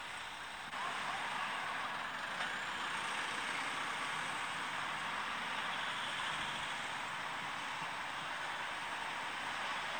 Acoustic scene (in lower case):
street